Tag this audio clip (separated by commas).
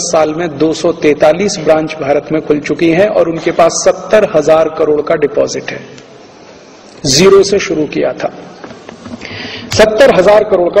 Speech